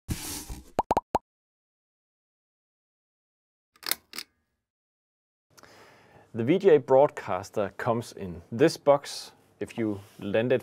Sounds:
Plop, Speech, inside a small room

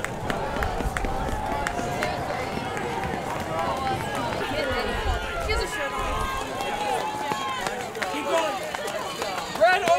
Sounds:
outside, rural or natural, Speech, Run

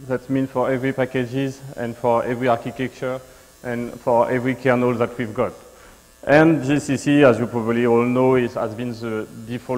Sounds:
Speech

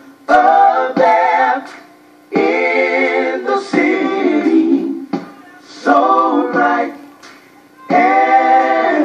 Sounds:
Singing, Music

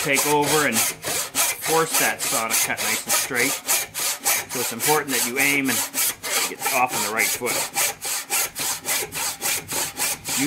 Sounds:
Sawing, Rub, Wood, Tools

